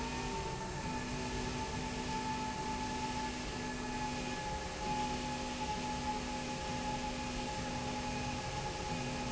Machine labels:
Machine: slide rail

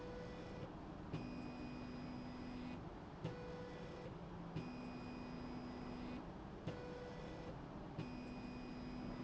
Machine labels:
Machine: slide rail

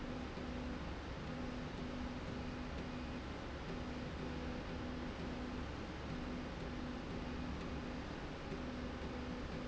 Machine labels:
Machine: slide rail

